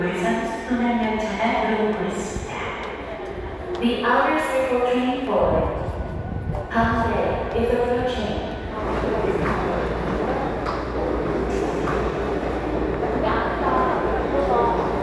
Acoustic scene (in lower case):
subway station